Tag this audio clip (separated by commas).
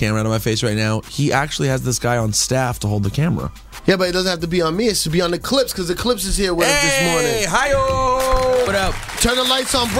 Speech, Music